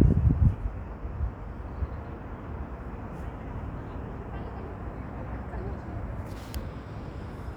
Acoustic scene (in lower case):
residential area